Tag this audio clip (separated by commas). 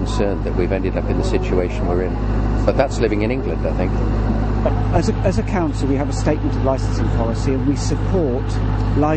Vehicle, Speech, outside, urban or man-made